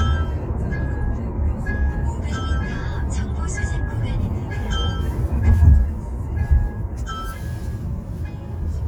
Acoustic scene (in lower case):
car